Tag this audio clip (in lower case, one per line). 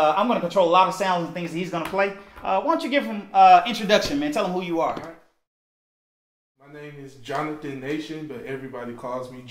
speech